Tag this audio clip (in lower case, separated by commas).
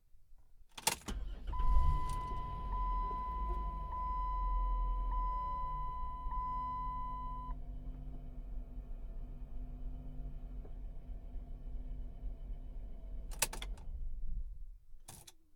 motor vehicle (road), vehicle